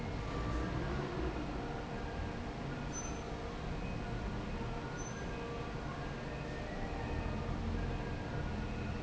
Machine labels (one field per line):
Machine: fan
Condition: normal